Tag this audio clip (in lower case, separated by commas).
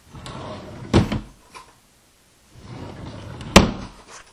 drawer open or close, home sounds, wood